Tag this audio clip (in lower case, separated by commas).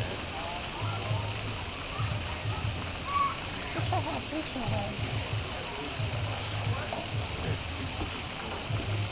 waterfall, speech